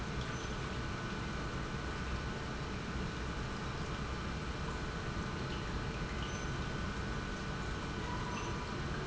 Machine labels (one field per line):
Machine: pump